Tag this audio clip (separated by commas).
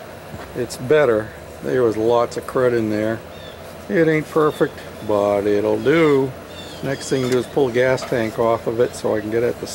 Speech